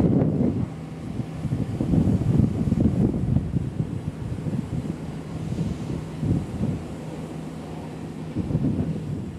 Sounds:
vehicle
wind

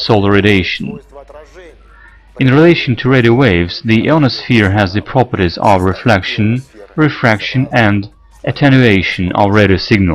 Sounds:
speech

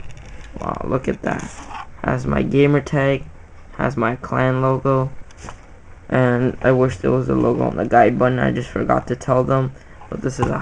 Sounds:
speech

